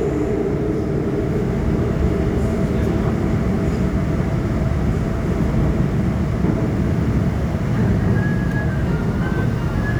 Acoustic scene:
subway train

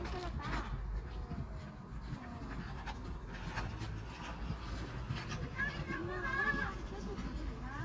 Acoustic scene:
residential area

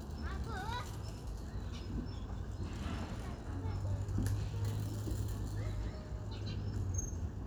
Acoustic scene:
residential area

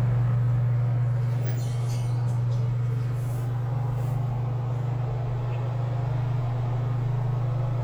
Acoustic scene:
elevator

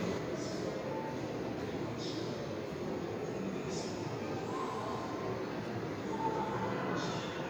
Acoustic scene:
subway station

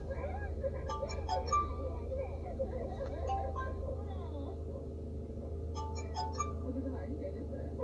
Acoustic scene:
car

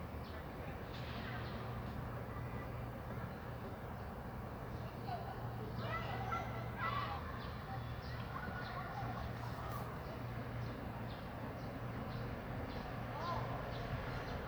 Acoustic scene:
residential area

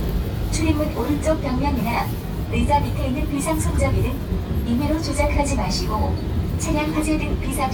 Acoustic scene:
subway train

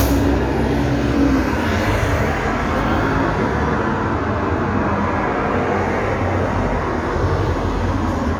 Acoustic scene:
street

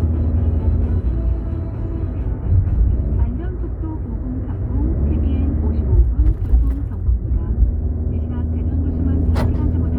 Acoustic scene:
car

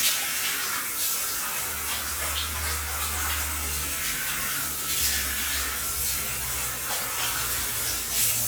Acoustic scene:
restroom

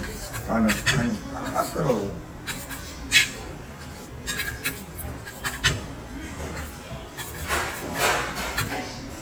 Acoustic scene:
restaurant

